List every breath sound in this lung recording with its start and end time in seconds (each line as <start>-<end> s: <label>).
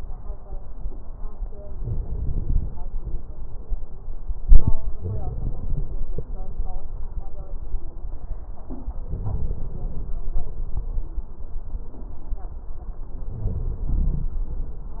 1.75-2.72 s: inhalation
5.00-6.08 s: crackles
5.00-6.11 s: inhalation
9.10-10.19 s: inhalation
13.26-14.35 s: inhalation
13.26-14.35 s: crackles